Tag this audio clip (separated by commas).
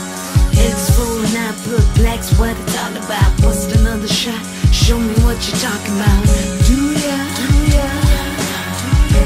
Music